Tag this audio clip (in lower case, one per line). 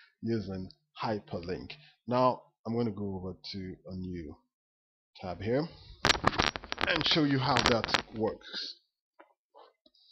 speech